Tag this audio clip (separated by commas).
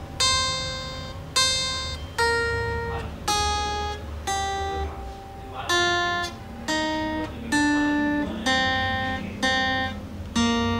Music, Guitar, Speech, Plucked string instrument, Musical instrument